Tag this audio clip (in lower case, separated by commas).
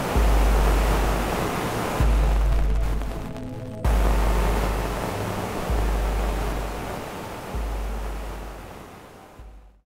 music